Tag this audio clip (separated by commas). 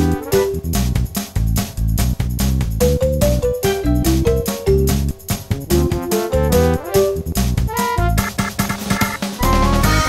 Music, Soundtrack music